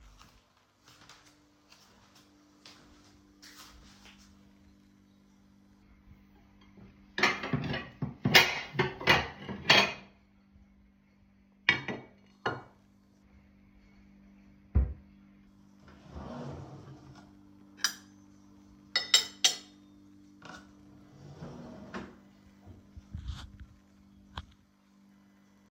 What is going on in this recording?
I opened the drawer, took a cutlery plate out and put the plate on the rack, then I took a fork and put it on the plate.